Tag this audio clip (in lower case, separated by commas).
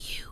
human voice, whispering